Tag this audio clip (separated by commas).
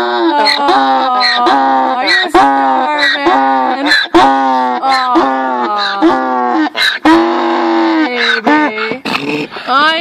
donkey